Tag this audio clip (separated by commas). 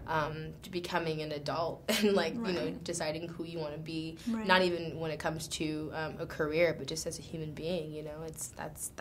Speech, inside a small room